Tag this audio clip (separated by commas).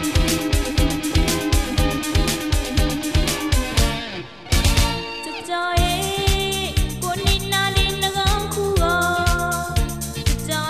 Theme music, Music